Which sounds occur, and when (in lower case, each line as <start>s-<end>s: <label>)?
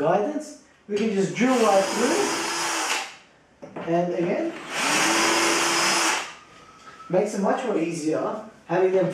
0.0s-0.6s: male speech
0.0s-9.1s: mechanisms
0.6s-0.8s: breathing
0.9s-2.3s: male speech
0.9s-1.0s: tick
1.4s-3.1s: drill
3.6s-3.8s: generic impact sounds
3.8s-4.6s: male speech
4.7s-6.4s: drill
7.1s-8.5s: male speech
8.7s-9.1s: male speech